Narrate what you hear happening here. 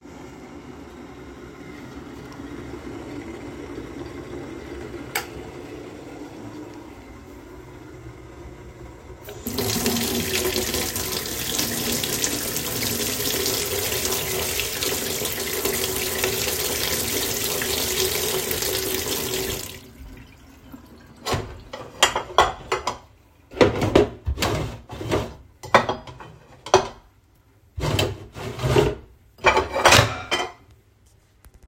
I turned up the light switch in the kitchen while water was boiling, then turn on the tap to wash m spoon and reaarranged my plates